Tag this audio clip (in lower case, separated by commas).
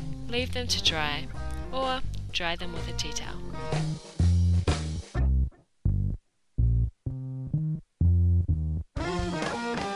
music, speech